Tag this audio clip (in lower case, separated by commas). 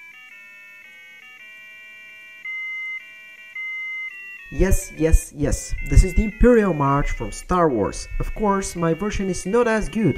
speech, buzzer, music